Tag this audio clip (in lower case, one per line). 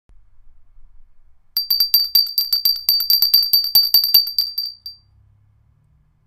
bell